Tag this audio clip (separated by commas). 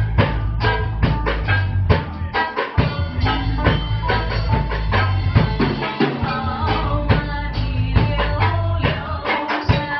Music